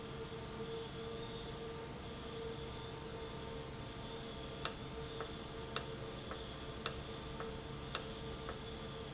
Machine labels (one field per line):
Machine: valve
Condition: normal